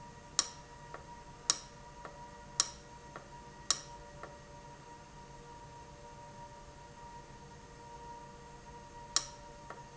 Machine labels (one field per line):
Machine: valve